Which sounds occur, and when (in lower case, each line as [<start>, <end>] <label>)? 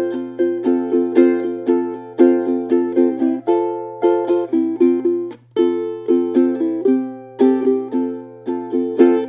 [0.00, 9.25] music